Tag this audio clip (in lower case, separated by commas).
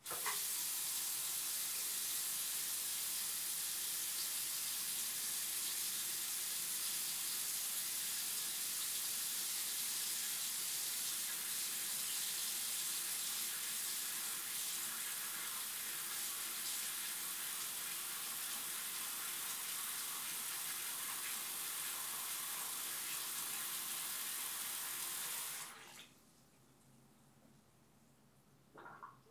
domestic sounds, water tap, sink (filling or washing)